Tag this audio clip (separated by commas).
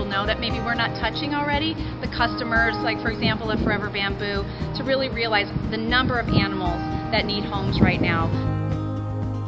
Music, Speech